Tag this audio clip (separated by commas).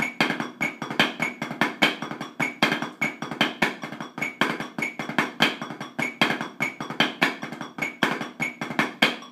Drum, inside a small room, Music